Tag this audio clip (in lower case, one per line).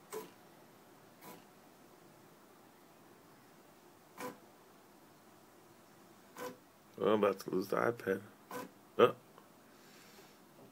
speech